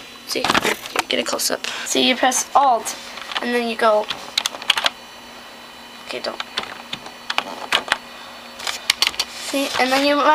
A girl speaks, rustling of a camera followed by computer typing